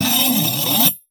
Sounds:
screech

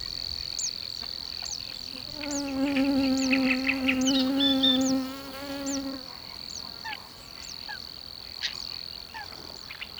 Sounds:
insect
buzz
wild animals
animal

